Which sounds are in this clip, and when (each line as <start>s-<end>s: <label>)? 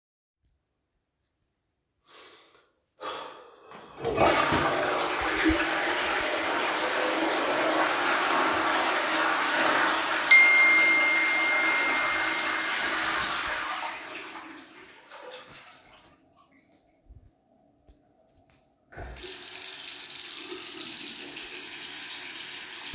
3.9s-16.4s: toilet flushing
10.2s-13.7s: phone ringing
18.9s-22.9s: running water